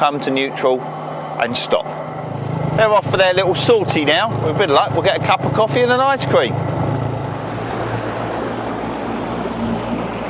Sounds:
speedboat
vehicle
speech
water vehicle

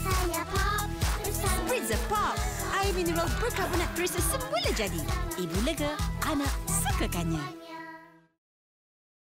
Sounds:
burst
speech
music

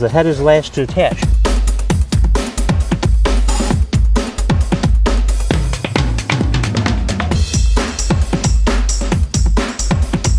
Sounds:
speech
drum and bass
music

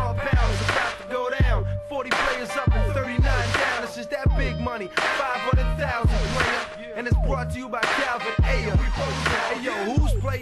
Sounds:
music

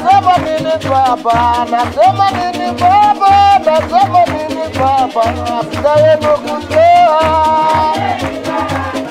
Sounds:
male singing
choir
music

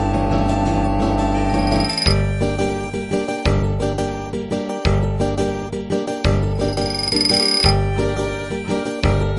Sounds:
music

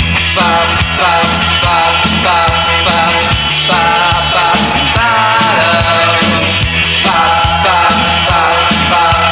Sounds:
music

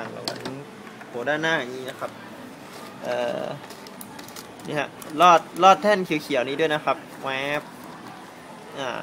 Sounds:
printer
speech

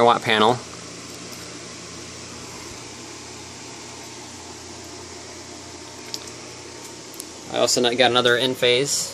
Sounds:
speech

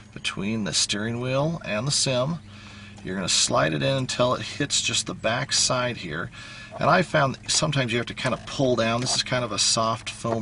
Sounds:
speech

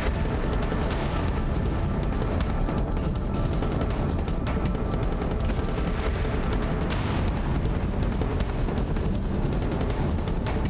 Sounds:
music

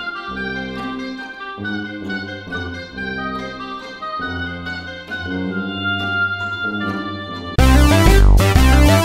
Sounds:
bowed string instrument
cello
pizzicato
violin

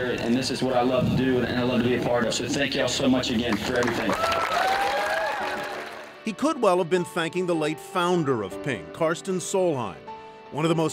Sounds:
speech
music

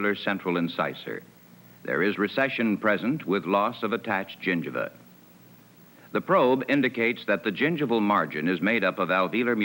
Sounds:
speech

